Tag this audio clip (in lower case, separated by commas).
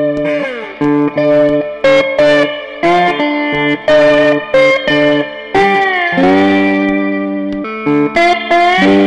guitar, music